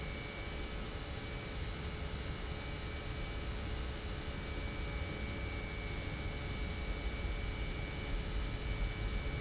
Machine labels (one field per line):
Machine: pump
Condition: normal